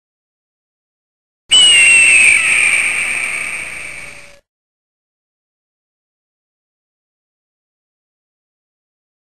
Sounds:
silence

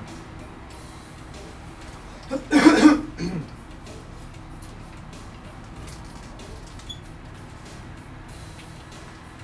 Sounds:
speech, electric guitar, music, plucked string instrument, musical instrument, guitar

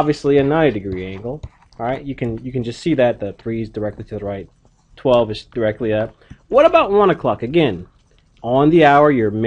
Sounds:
speech

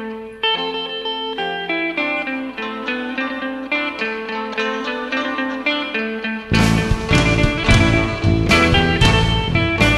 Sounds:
music, psychedelic rock

